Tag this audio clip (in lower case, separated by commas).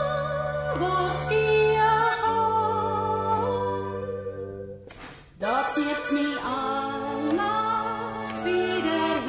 musical instrument, music, accordion